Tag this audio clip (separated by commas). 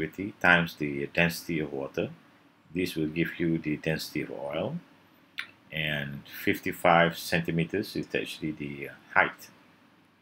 Speech